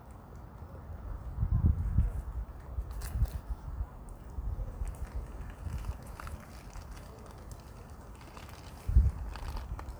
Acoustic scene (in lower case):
park